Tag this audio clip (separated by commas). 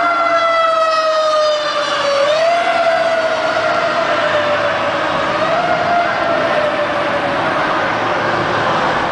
Vehicle